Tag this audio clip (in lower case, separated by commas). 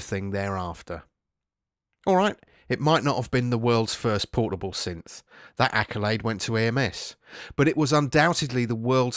speech